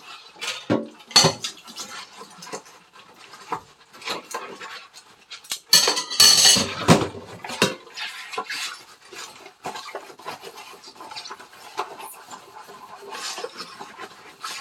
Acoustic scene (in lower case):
kitchen